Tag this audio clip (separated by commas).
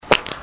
Fart